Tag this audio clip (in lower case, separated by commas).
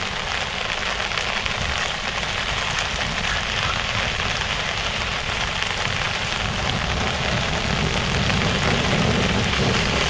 rain on surface, rain